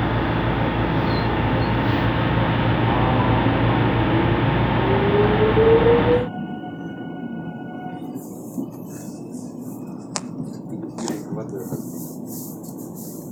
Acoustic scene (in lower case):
subway train